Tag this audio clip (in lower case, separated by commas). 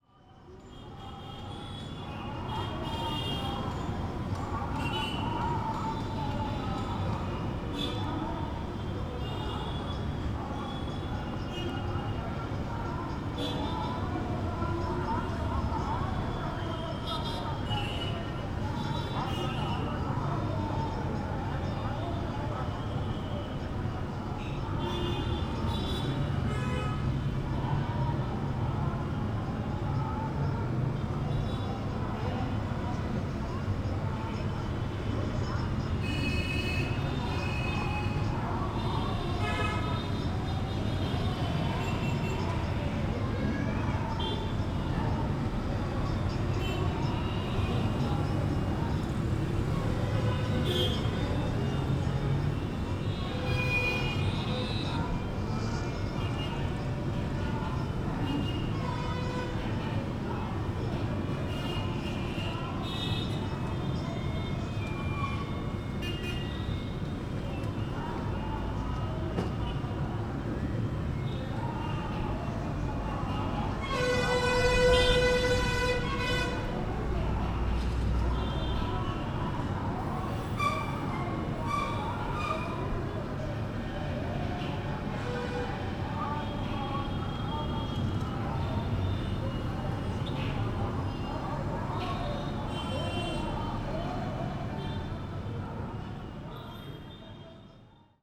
respiratory sounds, breathing